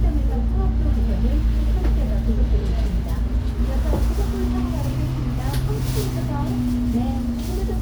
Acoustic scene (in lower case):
bus